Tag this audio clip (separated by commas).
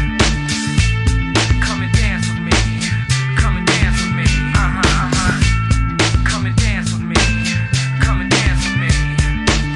Music